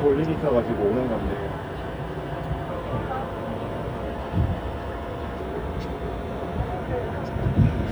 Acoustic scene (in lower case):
street